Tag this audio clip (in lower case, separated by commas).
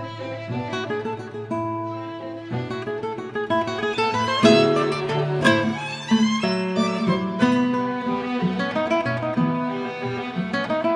bowed string instrument, violin